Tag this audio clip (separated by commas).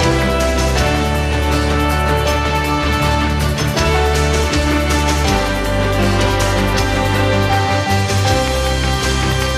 Soundtrack music, Music